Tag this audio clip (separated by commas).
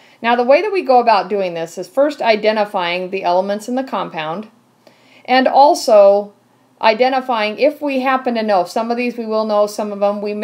Speech